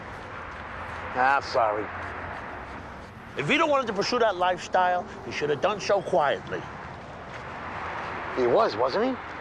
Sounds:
speech

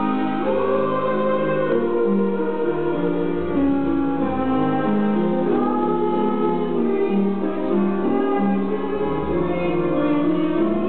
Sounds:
female singing, music

